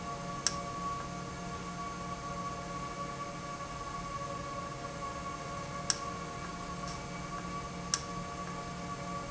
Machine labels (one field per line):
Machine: valve